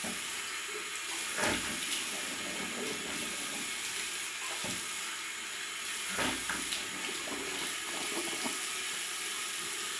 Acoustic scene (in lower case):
restroom